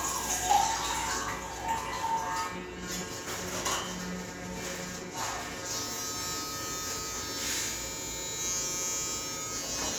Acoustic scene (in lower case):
restroom